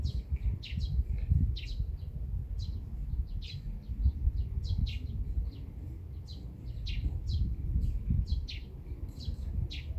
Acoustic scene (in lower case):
park